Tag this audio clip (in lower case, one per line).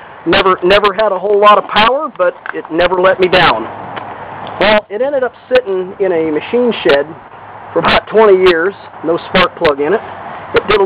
speech